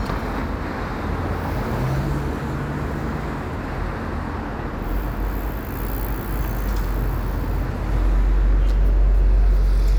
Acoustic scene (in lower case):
street